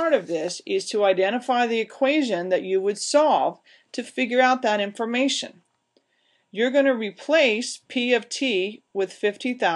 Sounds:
speech

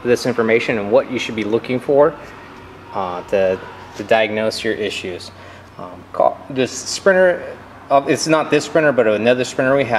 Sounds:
speech

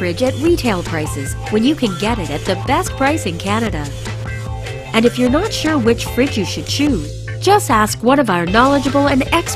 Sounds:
speech, music

